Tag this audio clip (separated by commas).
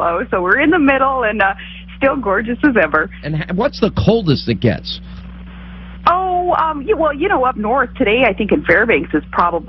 Speech, Radio